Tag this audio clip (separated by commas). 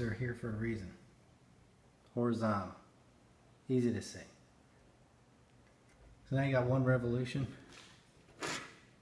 Speech